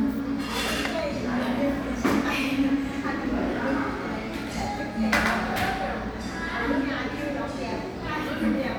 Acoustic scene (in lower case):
crowded indoor space